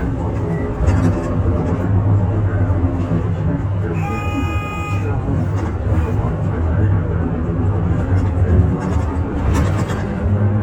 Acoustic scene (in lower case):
bus